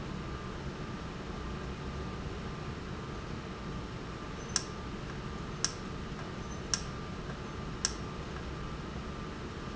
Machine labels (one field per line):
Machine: valve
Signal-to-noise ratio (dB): -6 dB